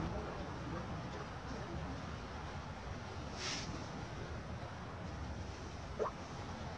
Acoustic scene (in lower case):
residential area